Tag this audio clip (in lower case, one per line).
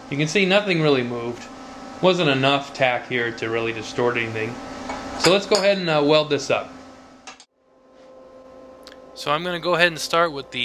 arc welding